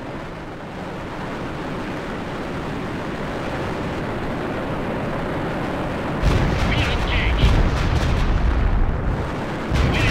Static humming sound, followed by artillery fire and a male speaking